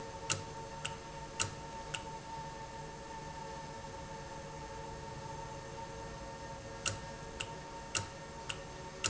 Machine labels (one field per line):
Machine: valve